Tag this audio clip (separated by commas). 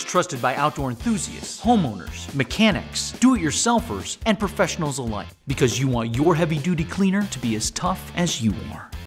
Speech, Music